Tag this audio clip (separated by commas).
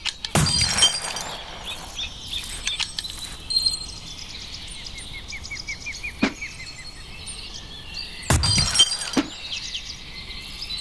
bird song, Bird, Chirp